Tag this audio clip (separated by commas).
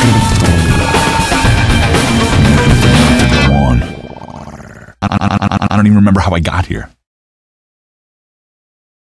Music, Speech